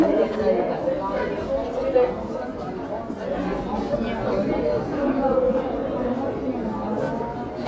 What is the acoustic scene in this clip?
crowded indoor space